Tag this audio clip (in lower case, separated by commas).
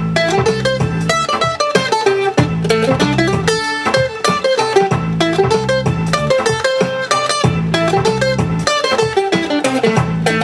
playing mandolin